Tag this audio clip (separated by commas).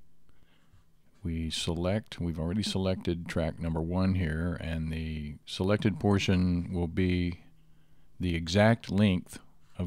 Speech